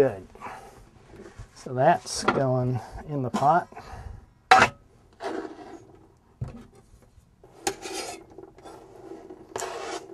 A man speaks with some light banging and scraping